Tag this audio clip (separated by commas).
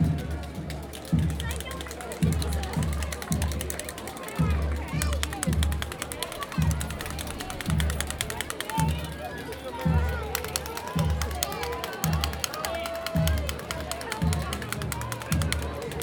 Human group actions, Crowd